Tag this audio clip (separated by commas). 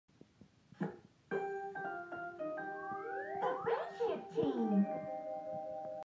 inside a small room, Speech, Music, Television